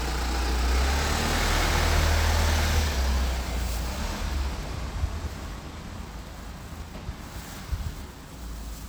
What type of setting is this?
residential area